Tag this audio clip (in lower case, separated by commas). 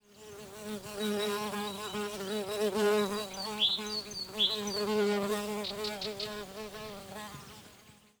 animal, bird, buzz, wild animals, insect